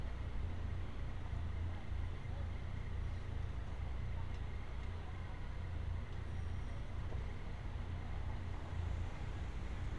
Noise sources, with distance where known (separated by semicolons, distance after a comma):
background noise